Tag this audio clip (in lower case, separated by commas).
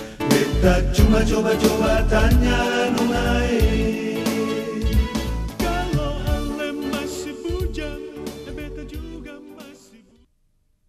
music